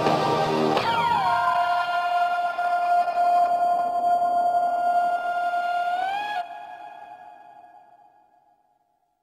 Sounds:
music

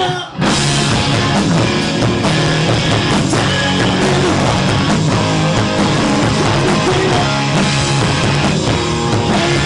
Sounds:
singing
punk rock
music

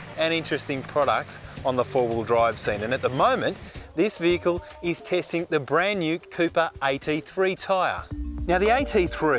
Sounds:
car
vehicle
speech
motor vehicle (road)
music

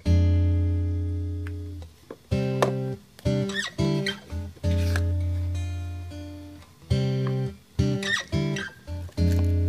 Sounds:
music

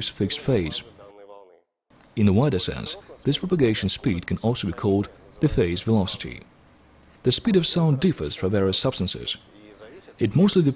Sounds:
speech

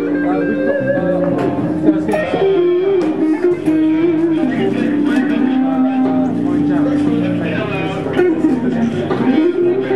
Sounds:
guitar
strum
music
speech
plucked string instrument
musical instrument

